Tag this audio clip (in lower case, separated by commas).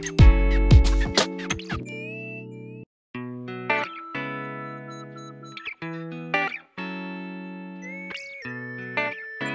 music